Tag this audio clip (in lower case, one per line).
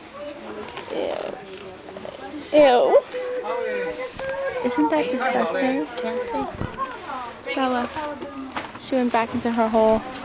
speech